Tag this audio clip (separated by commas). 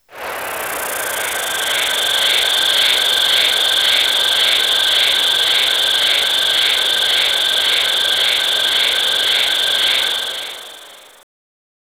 Insect, Wild animals, Animal